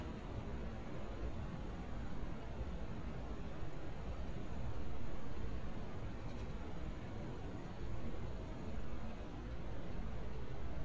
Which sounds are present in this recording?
background noise